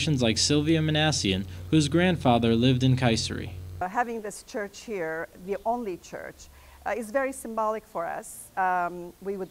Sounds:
Speech

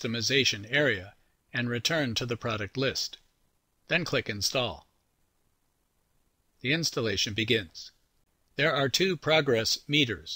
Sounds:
Speech

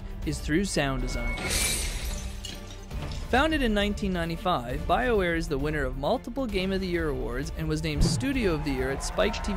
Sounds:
Music, Speech

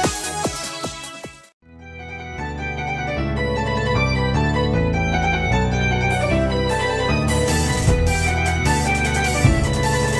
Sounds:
Music

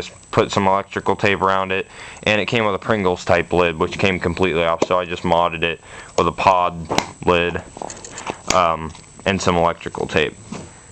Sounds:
Speech

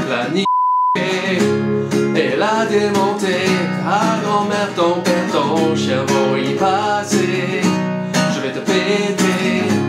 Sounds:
Music

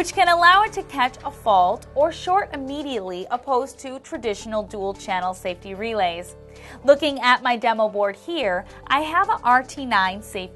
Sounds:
Speech, Music

